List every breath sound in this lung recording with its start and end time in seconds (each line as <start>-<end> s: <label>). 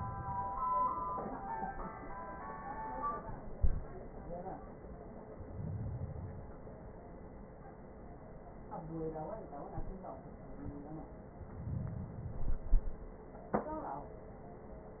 5.31-6.81 s: inhalation
11.32-12.73 s: inhalation